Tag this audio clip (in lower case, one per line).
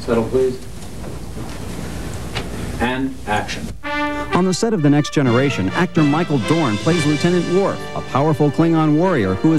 speech
music